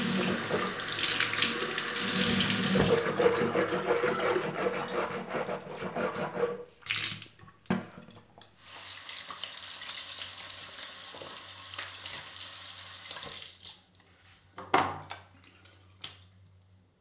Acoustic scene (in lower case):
restroom